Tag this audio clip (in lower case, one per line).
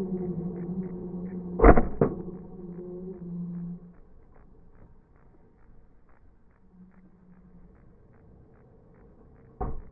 truck
vehicle